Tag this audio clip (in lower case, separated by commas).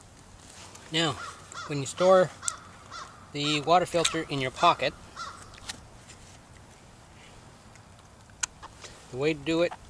speech, caw